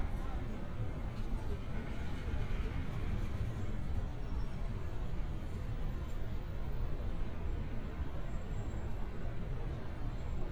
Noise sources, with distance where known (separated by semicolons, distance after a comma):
person or small group talking, far